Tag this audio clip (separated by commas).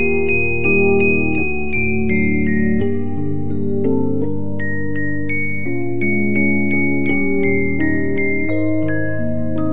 Music